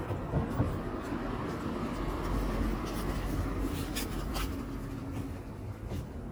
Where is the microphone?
in a residential area